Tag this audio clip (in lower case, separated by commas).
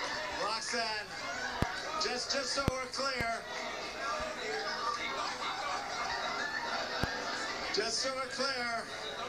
narration, man speaking, speech